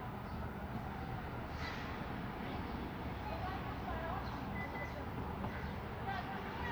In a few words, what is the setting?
residential area